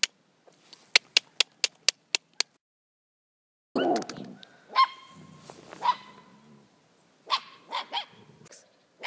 Repeated tapping, a dog whimpering and then yapping